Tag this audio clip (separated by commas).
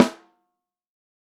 Snare drum, Drum, Percussion, Musical instrument, Music